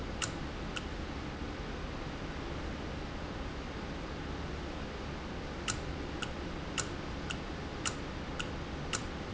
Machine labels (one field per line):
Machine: valve